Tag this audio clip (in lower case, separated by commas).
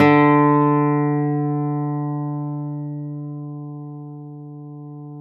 music, plucked string instrument, guitar, musical instrument, acoustic guitar